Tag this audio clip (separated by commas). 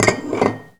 dishes, pots and pans, home sounds